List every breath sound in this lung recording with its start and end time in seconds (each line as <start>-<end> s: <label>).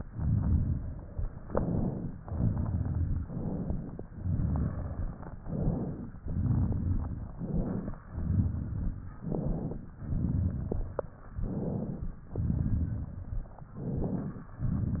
0.00-1.33 s: exhalation
0.00-1.33 s: crackles
1.42-2.18 s: inhalation
2.22-3.28 s: exhalation
2.22-3.28 s: crackles
3.28-4.04 s: inhalation
4.14-5.41 s: exhalation
4.14-5.41 s: crackles
5.45-6.21 s: inhalation
6.22-7.33 s: exhalation
6.22-7.33 s: crackles
7.40-8.06 s: inhalation
8.10-9.20 s: exhalation
8.10-9.20 s: crackles
9.22-9.98 s: inhalation
10.02-11.25 s: exhalation
10.02-11.25 s: crackles
11.35-12.18 s: inhalation
12.33-13.59 s: exhalation
12.33-13.59 s: crackles
13.72-14.55 s: inhalation